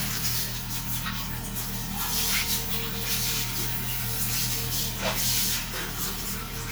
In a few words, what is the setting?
restroom